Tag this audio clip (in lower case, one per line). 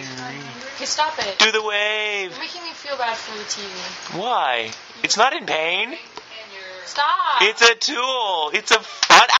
speech